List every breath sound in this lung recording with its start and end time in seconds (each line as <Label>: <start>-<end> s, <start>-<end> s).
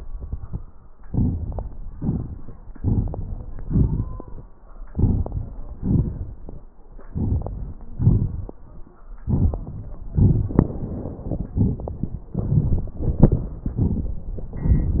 Inhalation: 0.97-1.95 s, 2.73-3.61 s, 4.66-5.74 s, 6.88-7.91 s, 9.05-10.03 s, 11.31-12.29 s, 12.94-13.68 s
Exhalation: 1.95-2.70 s, 3.63-4.64 s, 5.74-6.71 s, 7.91-9.03 s, 10.03-11.22 s, 12.31-12.94 s, 13.69-14.54 s
Crackles: 0.97-1.95 s, 1.98-2.70 s, 2.73-3.61 s, 3.63-4.64 s, 4.66-5.74 s, 5.74-6.71 s, 6.87-7.86 s, 7.91-9.03 s, 9.05-10.03 s, 10.03-11.22 s, 11.31-12.29 s, 12.31-12.94 s, 12.94-13.68 s, 13.69-14.54 s